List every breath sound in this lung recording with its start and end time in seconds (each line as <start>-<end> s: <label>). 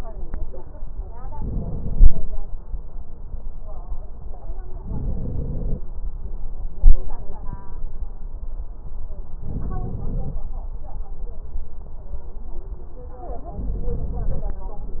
1.29-2.21 s: crackles
1.30-2.22 s: inhalation
4.85-5.78 s: crackles
4.87-5.79 s: inhalation
9.46-10.38 s: crackles
9.48-10.40 s: inhalation
13.58-14.50 s: inhalation